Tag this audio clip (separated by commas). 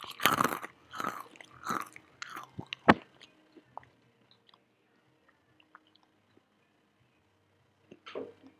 Chewing